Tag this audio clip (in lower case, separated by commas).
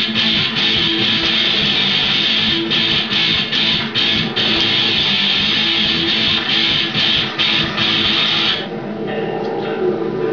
speech, strum, electric guitar, musical instrument, plucked string instrument, guitar, acoustic guitar, music